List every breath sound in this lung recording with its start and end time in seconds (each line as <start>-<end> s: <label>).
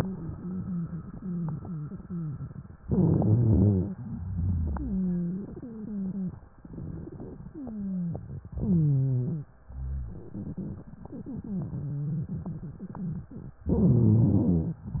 0.00-2.70 s: wheeze
2.83-3.95 s: inhalation
2.83-3.95 s: wheeze
4.10-6.36 s: wheeze
7.51-9.51 s: wheeze
9.73-10.30 s: rhonchi
10.32-13.57 s: crackles
13.76-14.82 s: inhalation
13.76-14.82 s: wheeze